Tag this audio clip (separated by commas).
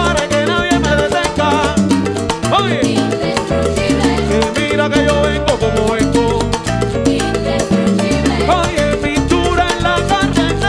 playing timbales